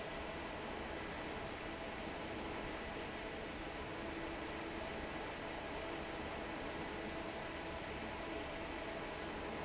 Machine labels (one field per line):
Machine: fan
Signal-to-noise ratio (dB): 6 dB